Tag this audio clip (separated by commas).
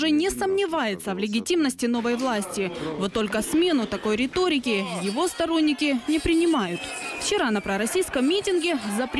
people booing